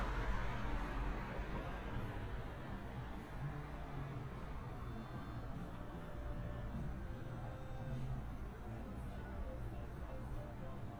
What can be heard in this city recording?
music from an unclear source